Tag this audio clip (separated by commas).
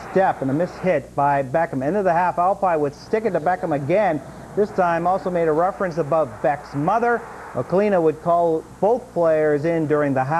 Speech